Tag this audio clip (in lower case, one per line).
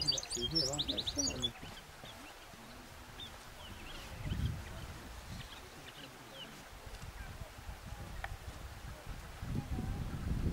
bird
speech
chirp
bird song